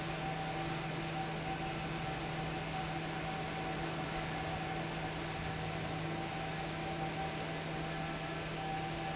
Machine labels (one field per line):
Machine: fan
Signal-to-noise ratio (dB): -6 dB